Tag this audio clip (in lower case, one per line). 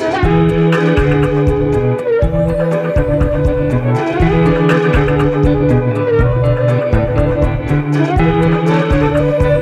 theremin
music